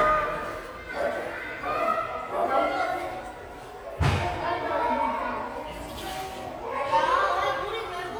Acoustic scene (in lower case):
crowded indoor space